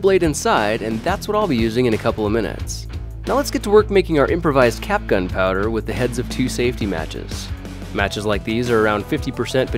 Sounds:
Music, Speech

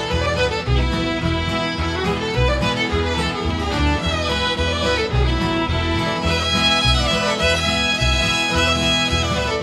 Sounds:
Music

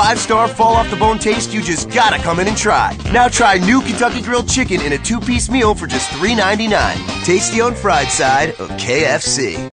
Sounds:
Speech, Music

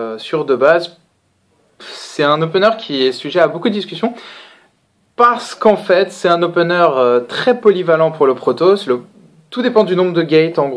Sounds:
Speech

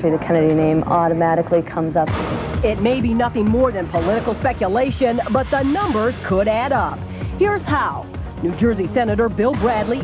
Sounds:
Speech, Music

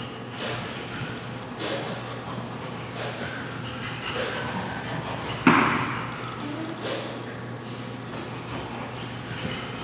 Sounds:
chimpanzee pant-hooting

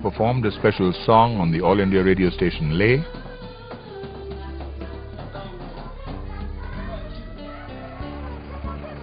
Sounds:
Speech, Music

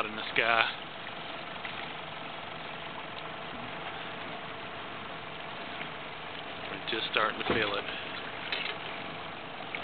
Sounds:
Speech

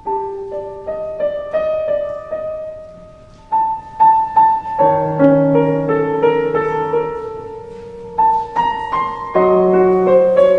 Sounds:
Music

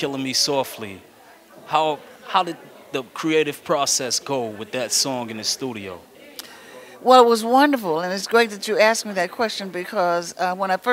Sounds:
Speech

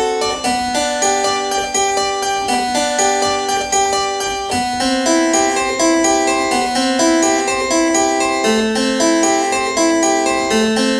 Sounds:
playing harpsichord

